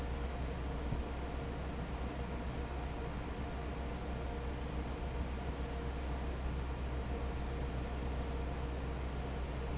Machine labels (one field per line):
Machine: fan